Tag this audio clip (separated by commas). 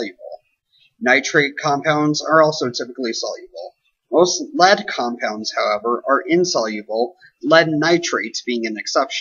Speech, Narration